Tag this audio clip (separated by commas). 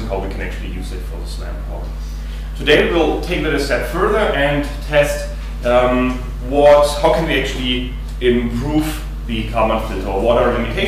Speech